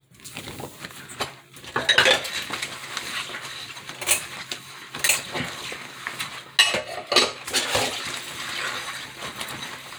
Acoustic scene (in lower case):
kitchen